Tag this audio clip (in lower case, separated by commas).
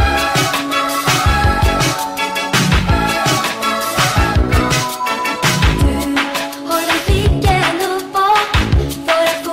music